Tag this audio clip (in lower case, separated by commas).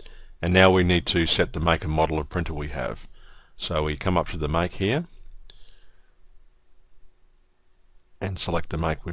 speech